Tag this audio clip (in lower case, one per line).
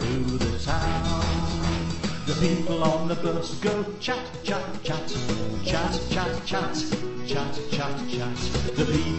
music